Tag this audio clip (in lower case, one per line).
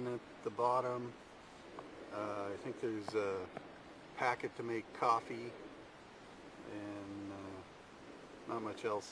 speech